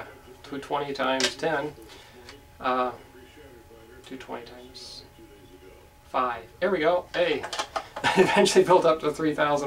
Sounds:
speech

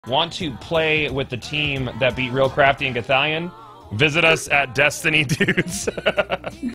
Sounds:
music
speech

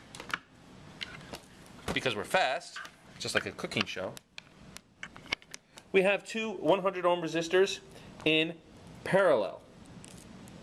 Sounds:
speech

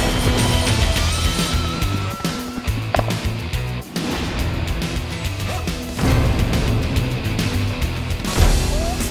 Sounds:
music

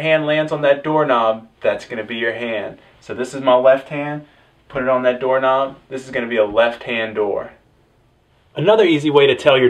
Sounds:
speech

